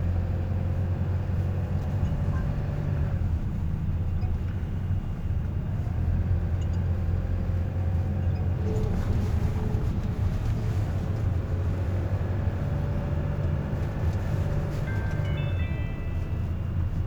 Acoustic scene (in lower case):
car